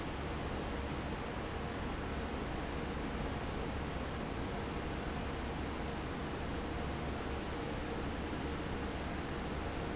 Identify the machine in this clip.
fan